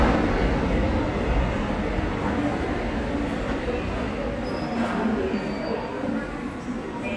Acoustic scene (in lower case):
subway station